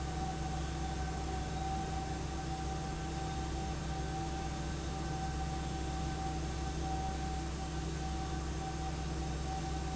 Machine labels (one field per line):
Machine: fan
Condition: abnormal